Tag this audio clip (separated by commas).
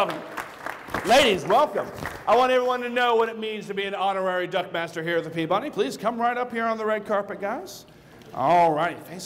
Speech